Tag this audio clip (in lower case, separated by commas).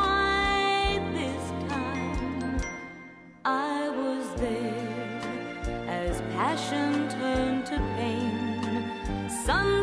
music, singing